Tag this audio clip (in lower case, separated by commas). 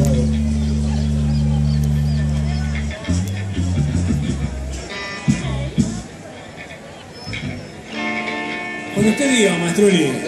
music, independent music, speech, tender music